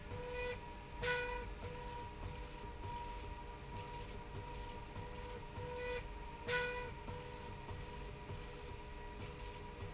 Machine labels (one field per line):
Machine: slide rail